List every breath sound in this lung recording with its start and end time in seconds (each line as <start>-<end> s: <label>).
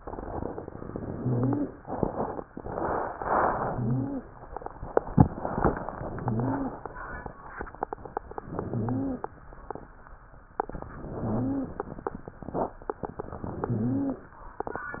0.82-1.73 s: inhalation
1.12-1.69 s: wheeze
3.21-4.25 s: inhalation
3.68-4.25 s: wheeze
5.90-6.78 s: inhalation
6.17-6.78 s: wheeze
8.44-9.26 s: inhalation
8.71-9.26 s: wheeze
10.93-11.86 s: inhalation
11.23-11.80 s: wheeze
13.45-14.31 s: inhalation
13.70-14.31 s: wheeze